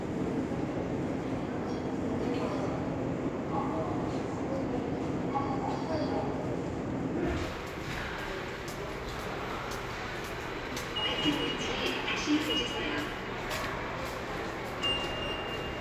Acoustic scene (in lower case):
subway station